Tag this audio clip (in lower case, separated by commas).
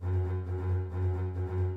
musical instrument, bowed string instrument, music